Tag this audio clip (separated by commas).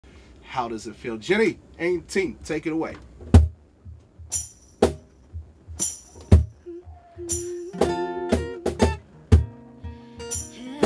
Music, Speech, inside a small room